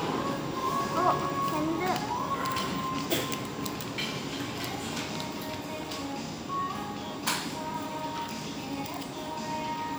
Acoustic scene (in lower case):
restaurant